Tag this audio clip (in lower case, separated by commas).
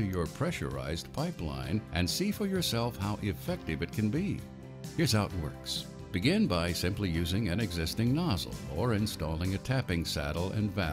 music, speech